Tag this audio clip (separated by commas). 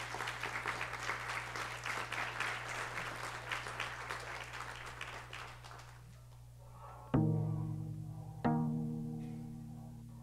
Musical instrument